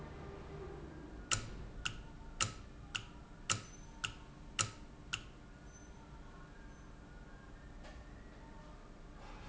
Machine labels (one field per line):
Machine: valve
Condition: normal